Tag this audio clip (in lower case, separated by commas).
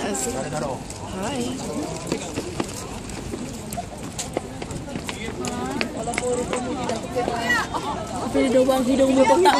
speech